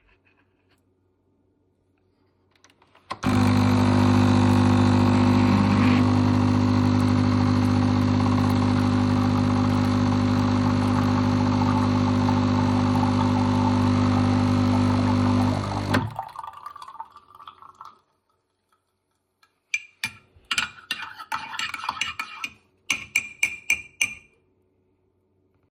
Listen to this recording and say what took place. The phone was placed statically on a kitchen countertop. The coffee machine was started and ran for most of the recording before being turned off. After the machine stopped a small amount of coffee continued dripping into a cup. Once the dripping ceased a spoon was used to stir the coffee and then tapped against the side of the mug.